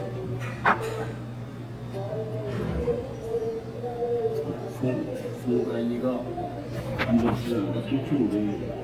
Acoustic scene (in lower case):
restaurant